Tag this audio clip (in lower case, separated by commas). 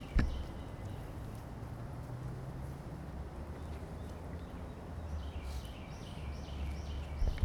bird, wild animals, animal